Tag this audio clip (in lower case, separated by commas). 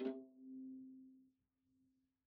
bowed string instrument, music, musical instrument